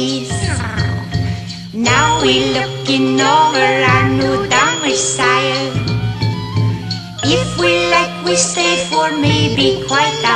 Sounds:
music

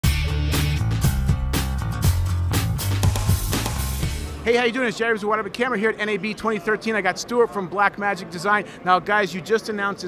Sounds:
music, speech

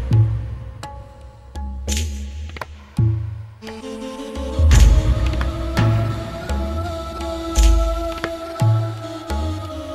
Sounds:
music

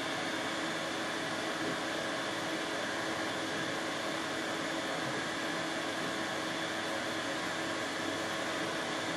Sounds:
tools

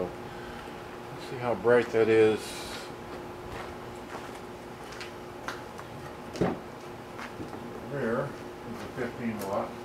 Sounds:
inside a large room or hall, vehicle, speech

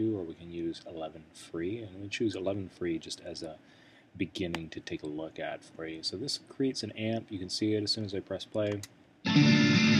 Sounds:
music, plucked string instrument, musical instrument, guitar, speech

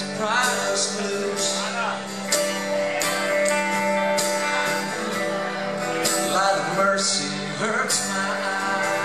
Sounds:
music, speech

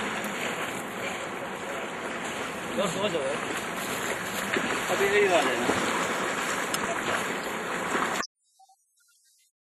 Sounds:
speech

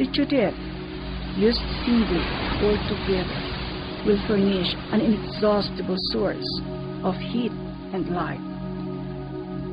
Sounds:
speech, music

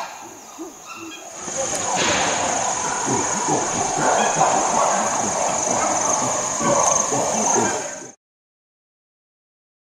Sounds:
chimpanzee pant-hooting

